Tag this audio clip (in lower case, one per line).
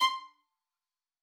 musical instrument
bowed string instrument
music